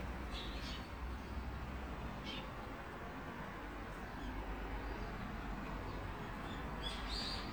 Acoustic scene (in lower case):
park